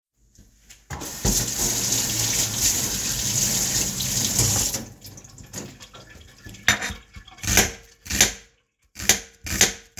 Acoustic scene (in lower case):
kitchen